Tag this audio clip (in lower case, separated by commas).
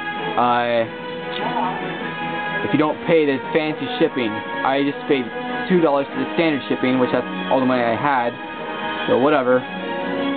speech, music